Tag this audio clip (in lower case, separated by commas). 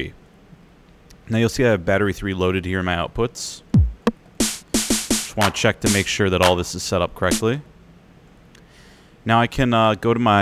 musical instrument, music, speech, drum kit, drum